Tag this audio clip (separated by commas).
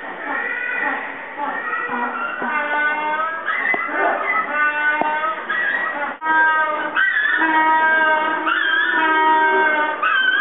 penguins braying